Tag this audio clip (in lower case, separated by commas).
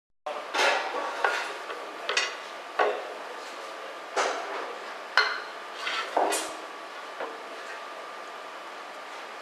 inside a small room